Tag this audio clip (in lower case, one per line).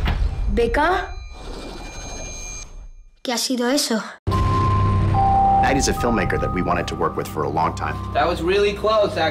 speech
music